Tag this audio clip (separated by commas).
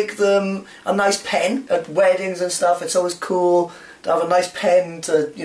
Speech